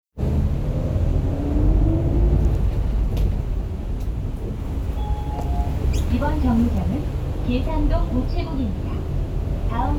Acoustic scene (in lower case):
bus